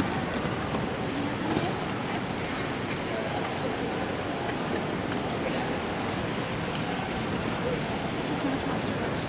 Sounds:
clip-clop
speech
animal

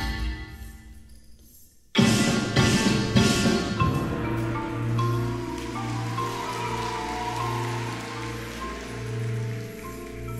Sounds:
percussion
music

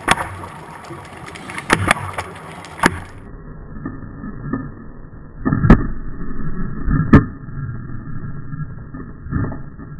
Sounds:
underwater bubbling

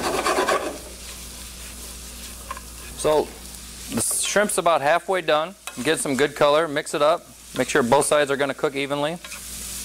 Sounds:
inside a small room
speech

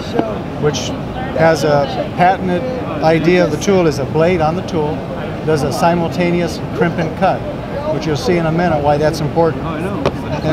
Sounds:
speech

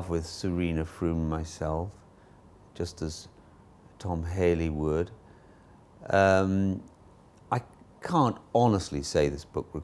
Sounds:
speech

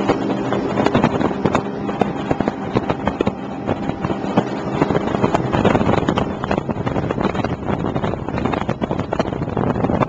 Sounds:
sailboat

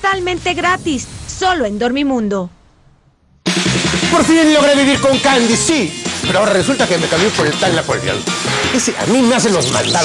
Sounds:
speech
music

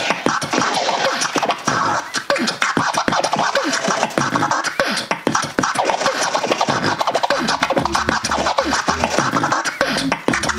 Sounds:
scratching (performance technique)
beatboxing

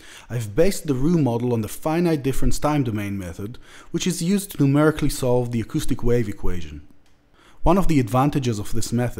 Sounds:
speech

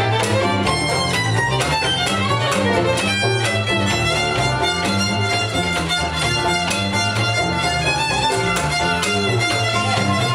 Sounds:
violin
music
musical instrument

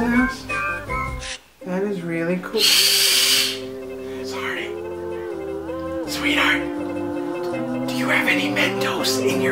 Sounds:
music
inside a small room
speech

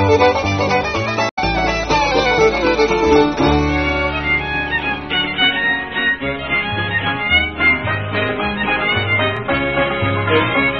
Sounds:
music
violin

